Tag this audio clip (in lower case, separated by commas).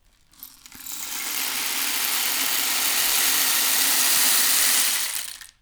music, percussion, rattle (instrument), musical instrument